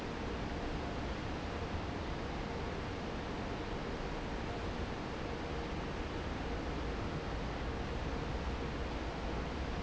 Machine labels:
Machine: fan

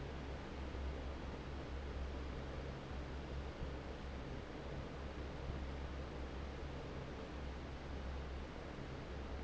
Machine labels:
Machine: fan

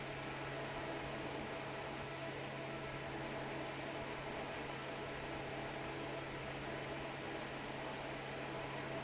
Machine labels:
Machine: fan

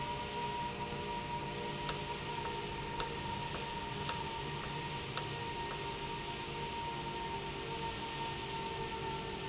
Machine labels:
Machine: valve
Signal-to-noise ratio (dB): -6 dB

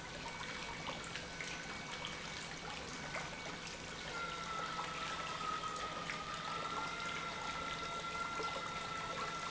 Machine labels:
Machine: pump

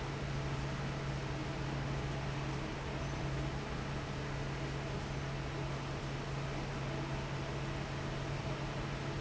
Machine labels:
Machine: fan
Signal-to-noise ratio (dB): -6 dB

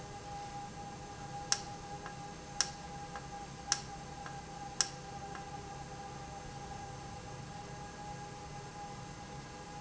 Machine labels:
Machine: valve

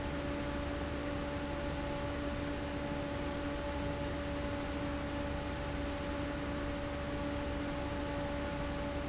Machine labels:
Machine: fan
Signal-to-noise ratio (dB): -6 dB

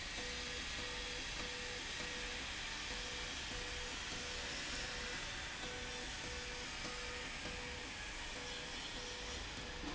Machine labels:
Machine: slide rail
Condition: abnormal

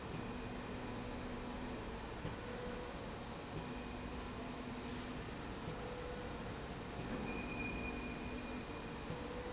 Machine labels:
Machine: slide rail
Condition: normal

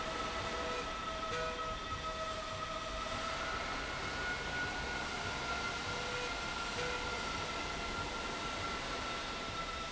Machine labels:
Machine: slide rail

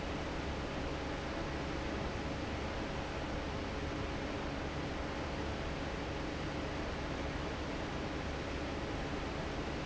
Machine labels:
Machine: fan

